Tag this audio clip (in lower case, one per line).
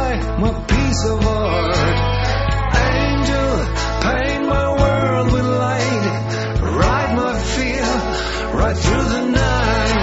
progressive rock
music